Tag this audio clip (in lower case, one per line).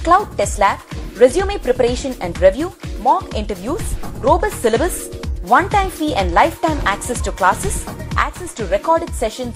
music
speech